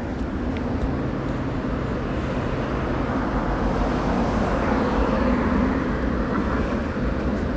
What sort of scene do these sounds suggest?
residential area